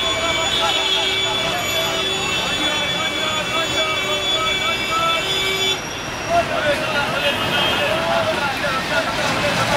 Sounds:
Vehicle, Speech, Bus

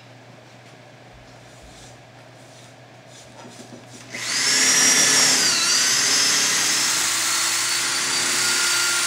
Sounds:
inside a small room

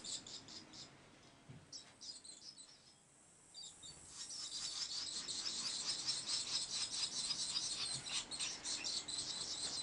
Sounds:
barn swallow calling

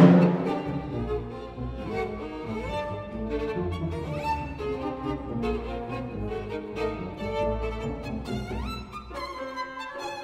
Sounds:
Music, Musical instrument, fiddle

